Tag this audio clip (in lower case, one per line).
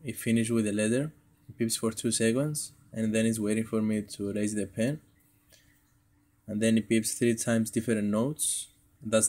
speech